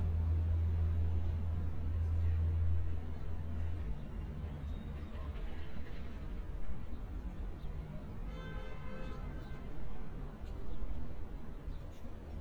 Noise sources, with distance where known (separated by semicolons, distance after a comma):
car horn, far